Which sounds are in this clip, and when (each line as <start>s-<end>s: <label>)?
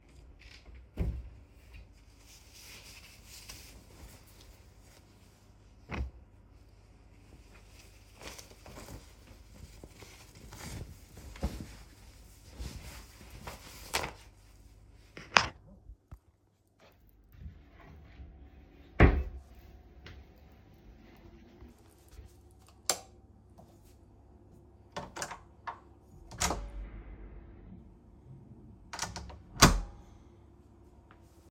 0.9s-1.3s: wardrobe or drawer
18.9s-19.5s: wardrobe or drawer
22.8s-23.2s: light switch
24.9s-27.4s: door
28.8s-30.1s: door